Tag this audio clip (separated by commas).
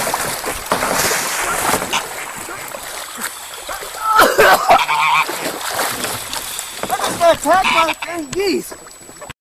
Speech, Honk